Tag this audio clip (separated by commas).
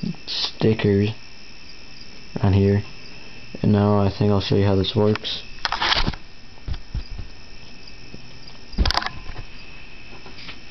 Speech